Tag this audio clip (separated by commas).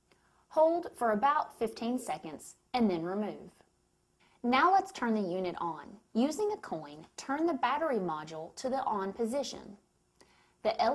Speech